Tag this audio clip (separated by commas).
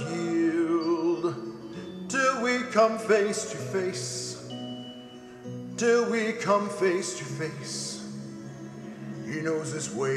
Music, Male singing